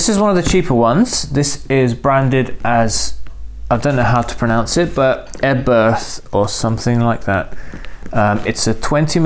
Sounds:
speech

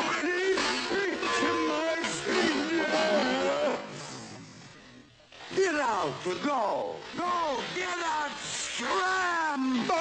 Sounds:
speech

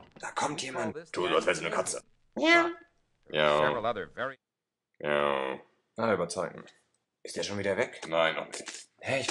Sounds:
speech

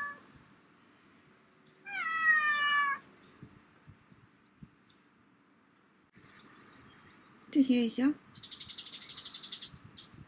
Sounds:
cat meowing

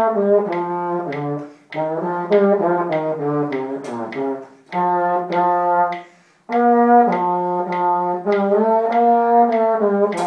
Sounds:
playing trombone

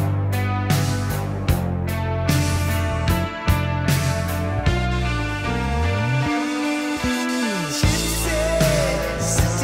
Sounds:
drum, musical instrument, bass drum, music, rock music, drum kit

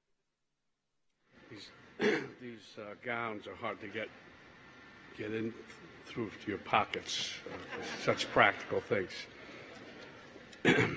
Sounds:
monologue, male speech, speech

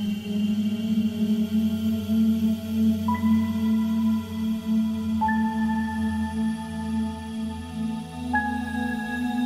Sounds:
music

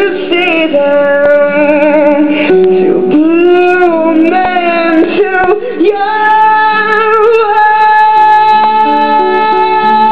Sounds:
music, musical instrument, harp, female singing

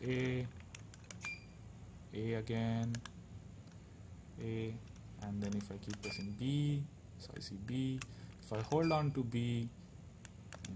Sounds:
speech, inside a small room, beep

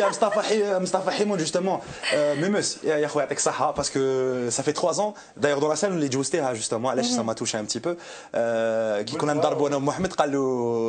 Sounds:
speech

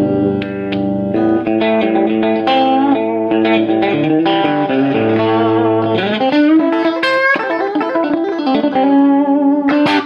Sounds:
steel guitar, effects unit

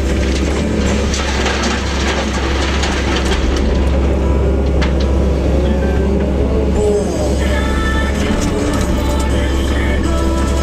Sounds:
music

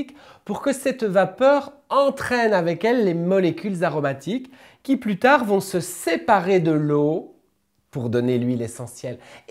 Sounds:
speech

